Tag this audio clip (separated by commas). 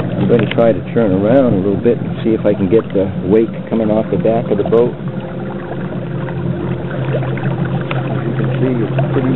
Water vehicle, Vehicle, Speech